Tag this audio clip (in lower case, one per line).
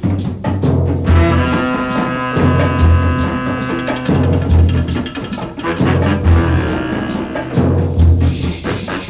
music